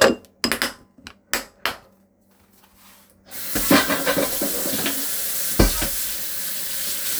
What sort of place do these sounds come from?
kitchen